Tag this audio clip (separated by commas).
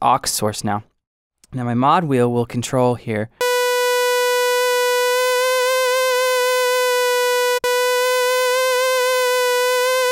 Speech